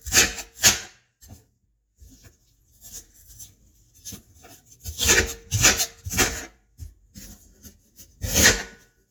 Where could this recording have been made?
in a kitchen